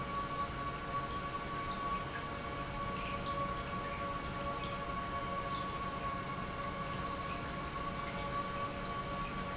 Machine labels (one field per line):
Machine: pump